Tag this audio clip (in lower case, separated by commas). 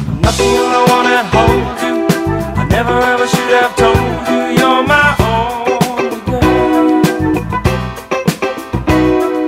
music, rhythm and blues, reggae